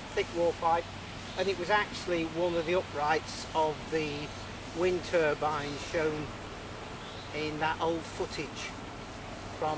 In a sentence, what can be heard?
Birds chirping and a man speaks